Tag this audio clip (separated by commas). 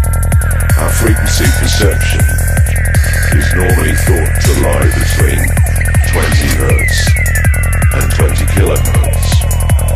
Music, Speech